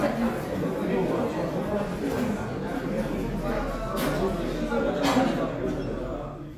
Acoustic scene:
crowded indoor space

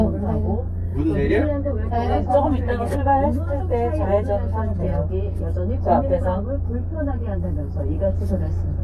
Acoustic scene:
car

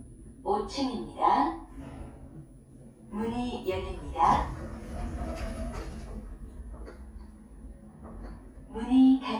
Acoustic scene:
elevator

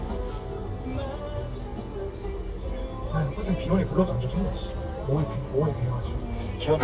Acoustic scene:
car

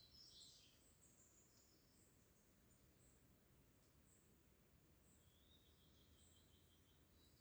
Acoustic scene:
park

